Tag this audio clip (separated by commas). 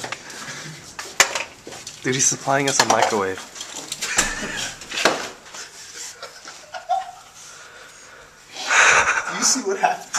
Speech